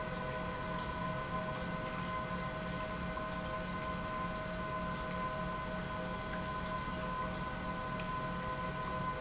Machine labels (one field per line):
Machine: pump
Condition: normal